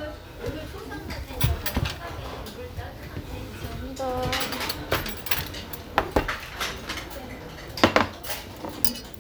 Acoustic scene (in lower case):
restaurant